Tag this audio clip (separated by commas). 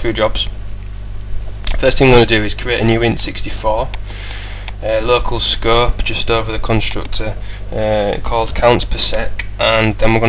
Speech